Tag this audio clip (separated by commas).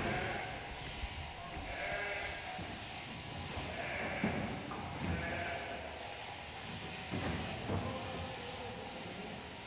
sheep bleating, Bleat, Sheep